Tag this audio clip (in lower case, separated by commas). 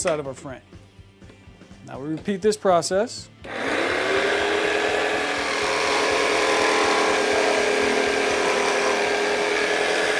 wood, rub, sawing